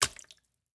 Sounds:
Water, splatter, Liquid

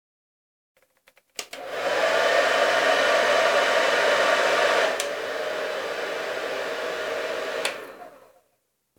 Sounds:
Domestic sounds

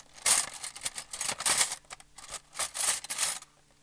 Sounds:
home sounds, Cutlery

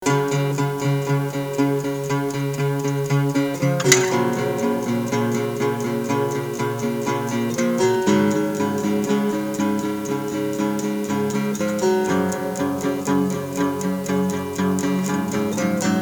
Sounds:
Musical instrument, Guitar, Plucked string instrument, Music, Acoustic guitar

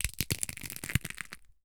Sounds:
Crushing

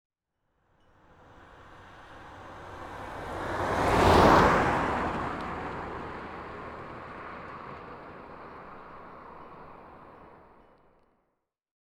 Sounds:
Motor vehicle (road), Vehicle

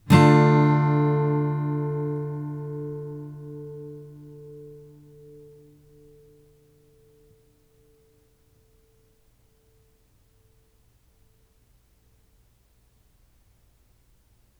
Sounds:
Guitar, Music, Strum, Musical instrument, Plucked string instrument

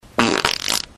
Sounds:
Fart

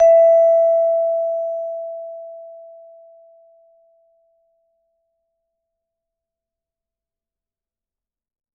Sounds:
Musical instrument, Mallet percussion, Percussion, Music

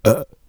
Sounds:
eructation

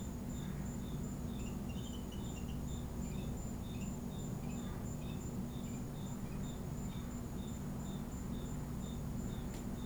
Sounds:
Animal, Wild animals, Insect

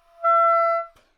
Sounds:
Wind instrument, Music, Musical instrument

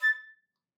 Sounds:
Wind instrument, Musical instrument, Music

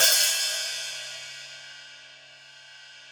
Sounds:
Percussion, Cymbal, Music, Hi-hat, Musical instrument

